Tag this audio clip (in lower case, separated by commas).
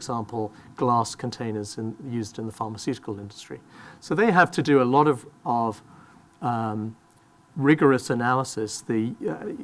speech